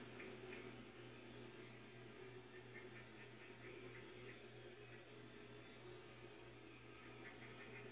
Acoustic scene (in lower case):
park